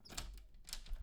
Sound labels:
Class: door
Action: opening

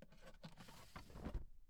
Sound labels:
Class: drawer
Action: opening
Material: plastic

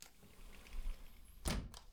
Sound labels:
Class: window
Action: closing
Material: glass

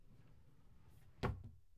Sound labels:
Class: drawer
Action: closing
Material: wooden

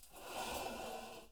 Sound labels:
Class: furniture moving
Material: metal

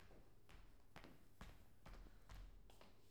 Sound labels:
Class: footsteps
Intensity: medium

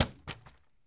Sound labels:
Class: object falling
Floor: carpet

